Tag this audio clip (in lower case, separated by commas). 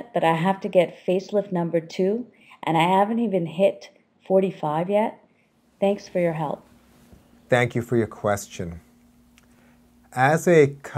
conversation